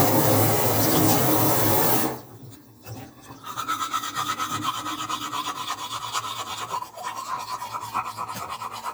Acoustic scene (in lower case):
restroom